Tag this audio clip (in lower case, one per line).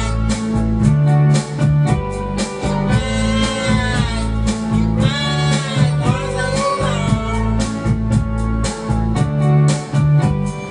music